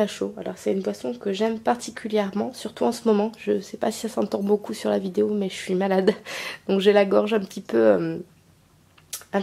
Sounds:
speech

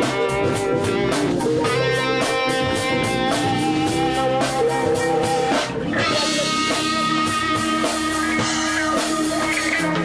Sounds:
independent music, music, theme music

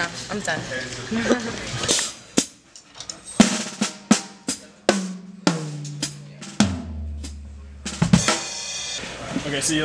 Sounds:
cymbal, drum roll, rimshot, drum, snare drum, bass drum, percussion, hi-hat, drum kit

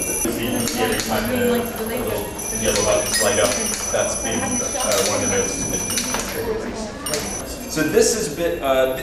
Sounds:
speech

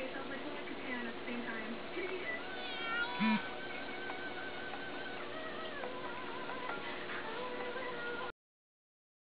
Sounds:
music, speech

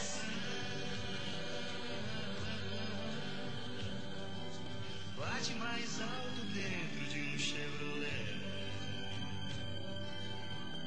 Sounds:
music

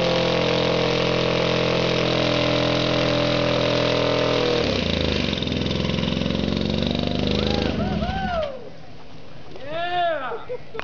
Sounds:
vehicle, engine, medium engine (mid frequency)

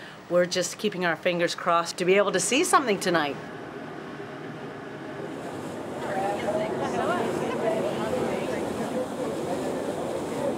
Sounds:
speech

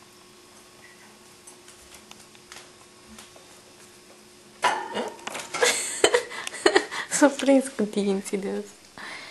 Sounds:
speech, mouse, animal

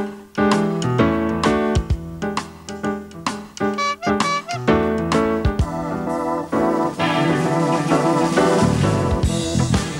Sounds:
music

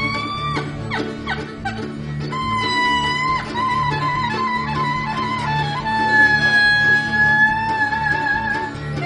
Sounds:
music, jazz, wedding music

